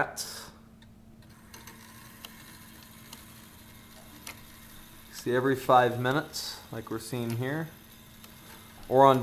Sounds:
Speech

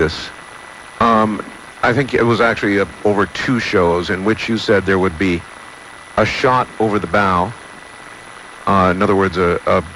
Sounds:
Speech

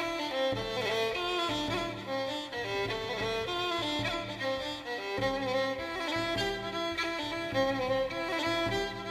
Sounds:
Cello, Bowed string instrument

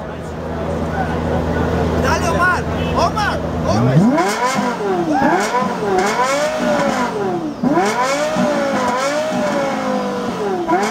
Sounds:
Accelerating, Vehicle, Speech, Car

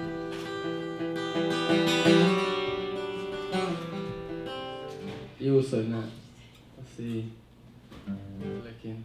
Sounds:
Speech, Music

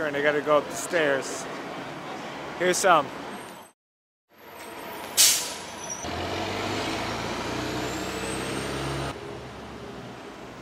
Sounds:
Speech

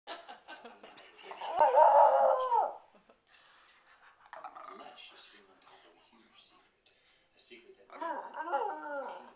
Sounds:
Bark, Dog, Domestic animals, Animal

